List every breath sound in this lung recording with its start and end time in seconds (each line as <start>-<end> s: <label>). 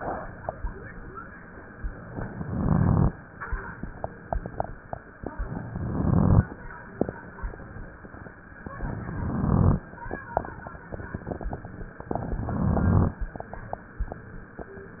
2.11-3.11 s: inhalation
2.11-3.11 s: crackles
5.46-6.47 s: inhalation
5.46-6.47 s: crackles
8.82-9.83 s: inhalation
8.82-9.83 s: crackles
12.20-13.21 s: inhalation
12.20-13.21 s: crackles